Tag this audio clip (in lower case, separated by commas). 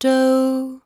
female singing, human voice, singing